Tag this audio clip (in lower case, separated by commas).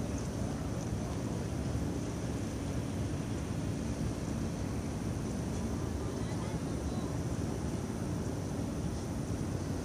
speech, pulse